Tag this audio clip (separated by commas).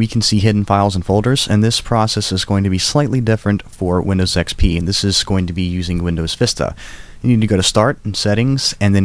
Speech